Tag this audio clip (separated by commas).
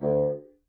woodwind instrument, Musical instrument, Music